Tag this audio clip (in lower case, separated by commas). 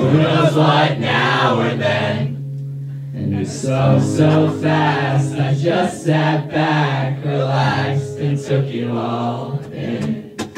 music